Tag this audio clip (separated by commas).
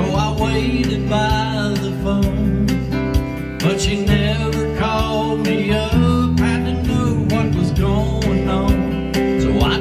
Music